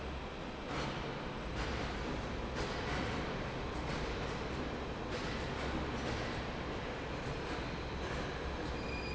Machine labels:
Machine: fan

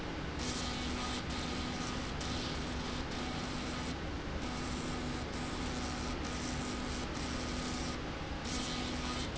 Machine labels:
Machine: slide rail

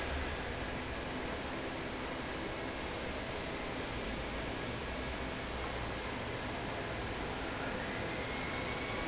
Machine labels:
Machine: fan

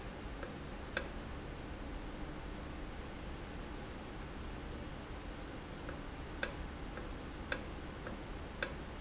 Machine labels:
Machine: valve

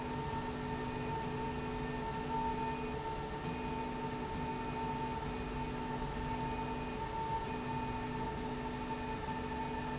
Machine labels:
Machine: slide rail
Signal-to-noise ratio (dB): -6 dB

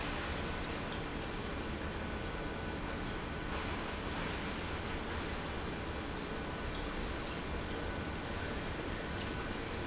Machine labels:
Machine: pump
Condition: normal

